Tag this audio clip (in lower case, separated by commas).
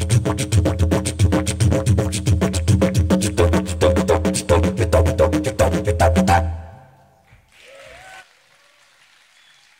playing didgeridoo